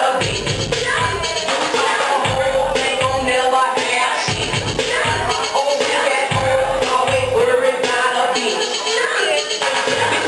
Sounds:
Singing, Music

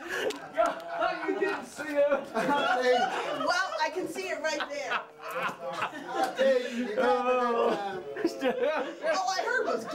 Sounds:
Speech, inside a small room

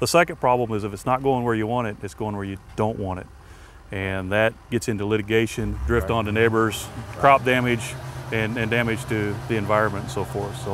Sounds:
Speech

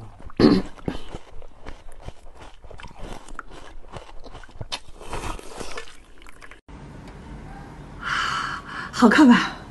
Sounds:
people eating noodle

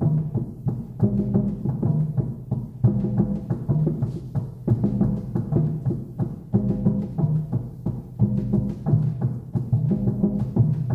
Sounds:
Music, Timpani

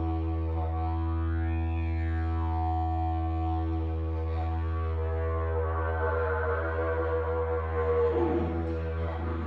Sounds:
playing didgeridoo

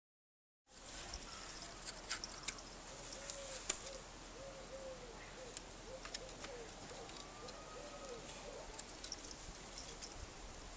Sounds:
Animal

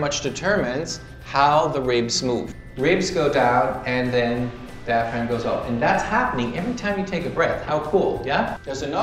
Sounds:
Speech, Music

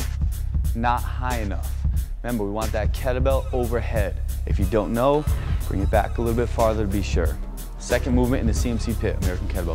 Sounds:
Music, Speech

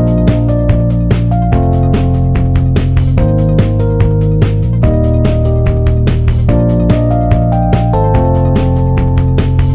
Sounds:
Music

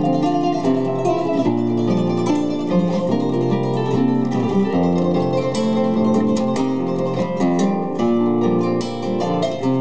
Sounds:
Music, Harp, playing harp, Guitar, Bowed string instrument, Plucked string instrument, Musical instrument

